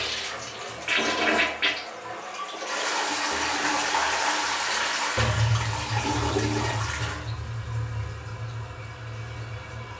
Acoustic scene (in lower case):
restroom